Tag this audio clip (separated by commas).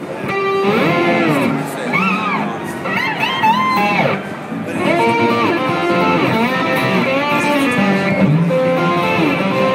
Speech, Guitar, Music, Strum, Musical instrument, Electric guitar, Plucked string instrument